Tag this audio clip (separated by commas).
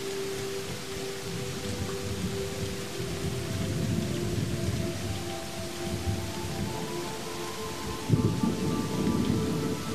Thunder, Rain, Thunderstorm